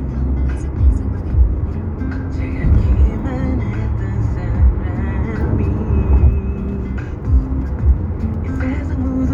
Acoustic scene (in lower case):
car